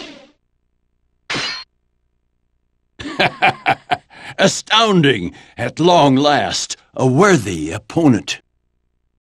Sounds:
Clang

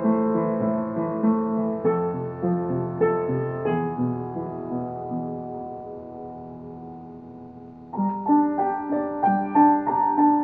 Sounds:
Theme music, Soul music, Music

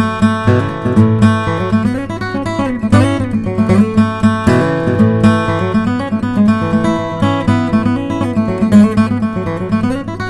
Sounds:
Music

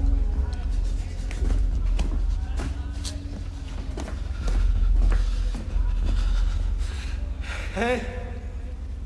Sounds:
Speech

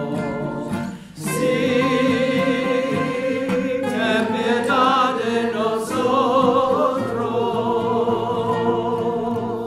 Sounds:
Music, A capella, Vocal music, inside a large room or hall

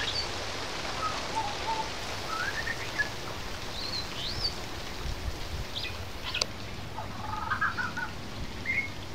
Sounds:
Bird, Bird vocalization

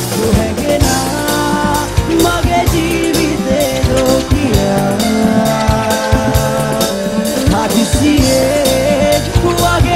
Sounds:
Music

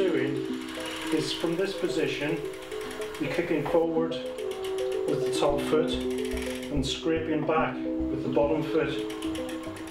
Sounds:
Music, Speech

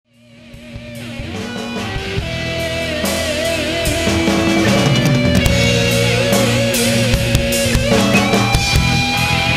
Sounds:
Music, Rock music

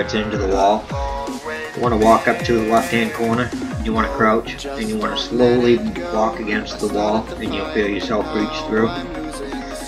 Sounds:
Speech

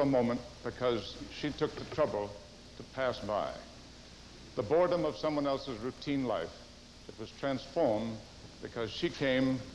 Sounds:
Speech, monologue, man speaking

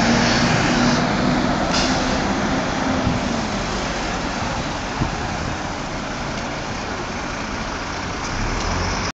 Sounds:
Bus, Vehicle, driving buses

